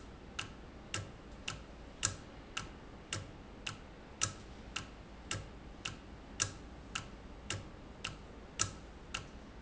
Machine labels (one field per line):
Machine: valve